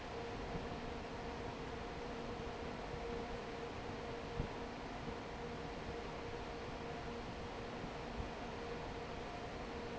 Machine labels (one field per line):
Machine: fan